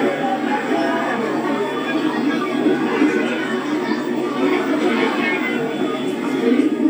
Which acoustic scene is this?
park